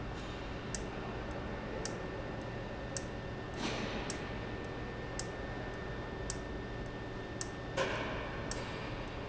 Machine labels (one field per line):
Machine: valve